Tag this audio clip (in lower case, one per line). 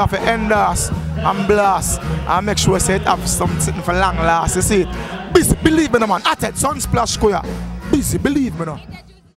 music
speech